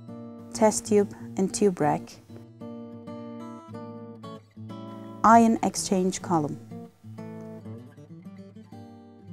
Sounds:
Speech, Music

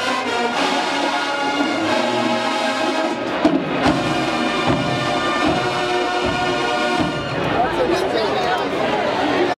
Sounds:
Music, Speech

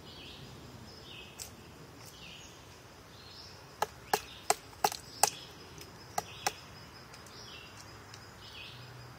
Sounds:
woodpecker pecking tree

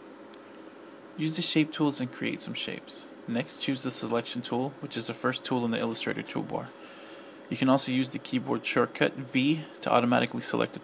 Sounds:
Speech

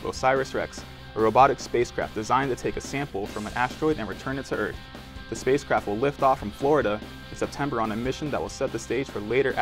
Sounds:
Music, Speech

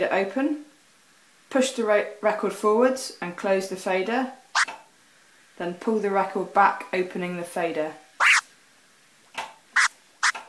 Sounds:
Scratching (performance technique), Speech

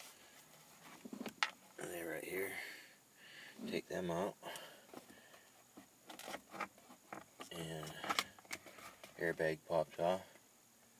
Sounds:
Speech

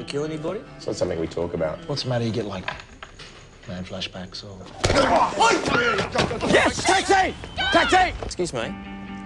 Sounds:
Music, Speech

